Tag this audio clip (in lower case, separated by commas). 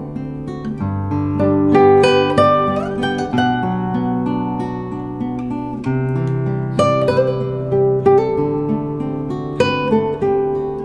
musical instrument, acoustic guitar, guitar, plucked string instrument, music